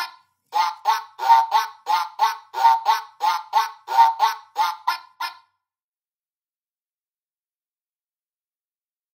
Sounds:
quack

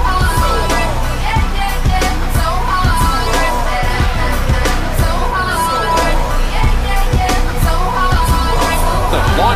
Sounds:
speech, music

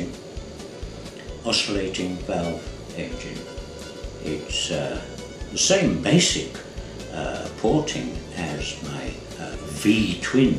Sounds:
music, speech

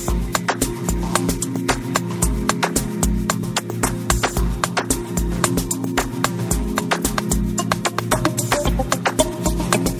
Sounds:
music

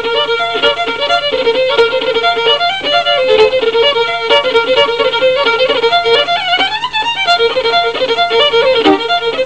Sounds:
musical instrument, fiddle, music

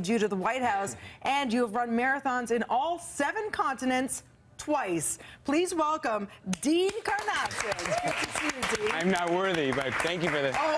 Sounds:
inside a large room or hall, speech

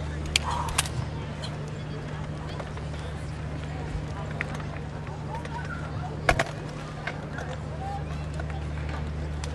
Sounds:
outside, urban or man-made, speech

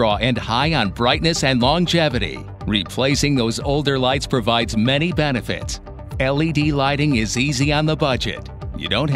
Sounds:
speech, music

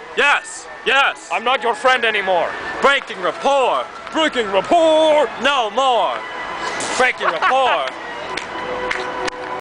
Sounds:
music, speech

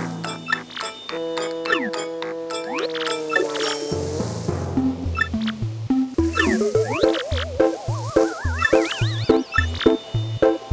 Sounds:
music

